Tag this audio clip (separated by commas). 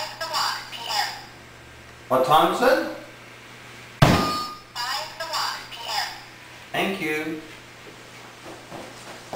Speech